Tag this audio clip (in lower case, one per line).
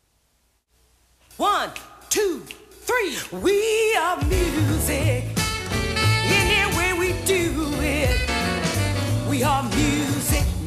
music